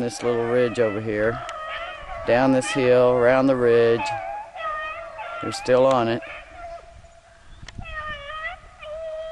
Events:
0.0s-1.4s: man speaking
0.0s-9.3s: wind
0.0s-9.3s: animal
1.4s-1.5s: tick
2.1s-4.1s: man speaking
5.4s-6.2s: man speaking
5.9s-5.9s: tick
7.6s-7.7s: tick

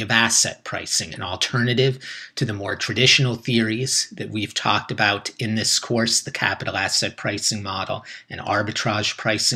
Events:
0.0s-2.0s: man speaking
0.0s-9.5s: background noise
2.0s-2.3s: breathing
2.4s-8.0s: man speaking
8.1s-8.3s: breathing
8.3s-9.5s: man speaking

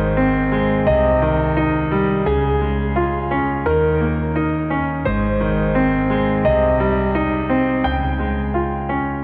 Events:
0.0s-9.2s: music

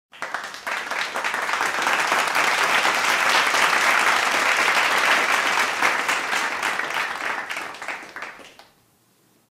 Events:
0.1s-9.5s: background noise
0.1s-8.8s: applause

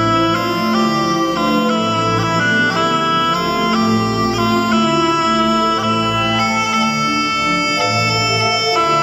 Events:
0.0s-9.0s: music

